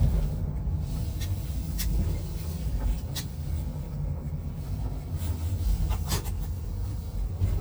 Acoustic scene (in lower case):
car